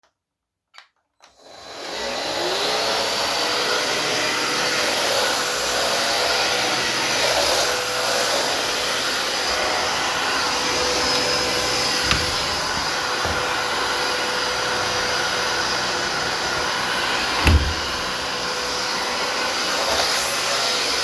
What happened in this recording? I was vacuuming, during that i opened the window and closed it again.